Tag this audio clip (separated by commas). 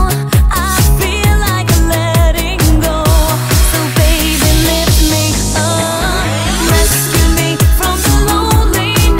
Music